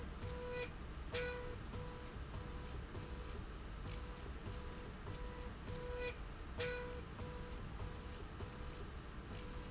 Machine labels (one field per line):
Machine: slide rail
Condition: normal